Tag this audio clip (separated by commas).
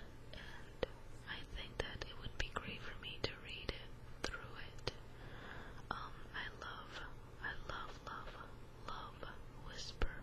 Speech